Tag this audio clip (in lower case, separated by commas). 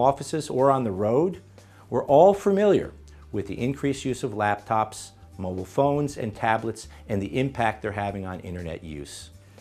music, speech